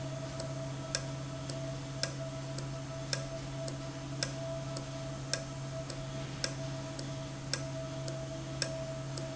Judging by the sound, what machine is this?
valve